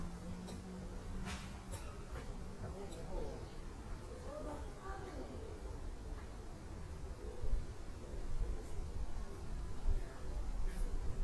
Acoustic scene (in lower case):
park